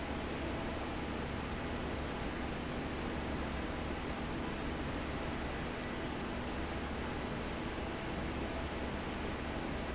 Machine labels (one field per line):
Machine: fan